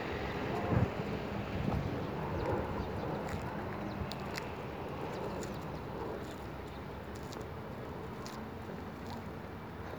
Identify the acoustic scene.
street